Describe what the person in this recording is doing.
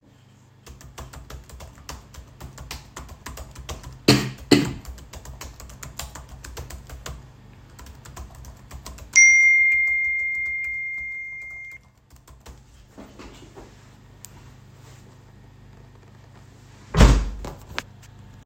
I was typing on the keyboard at my desk. While I was typing, I received a message notification on my phone. I then stood up, pushed the chair back, and closed the window.